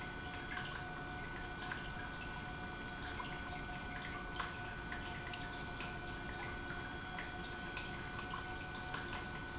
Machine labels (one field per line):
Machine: pump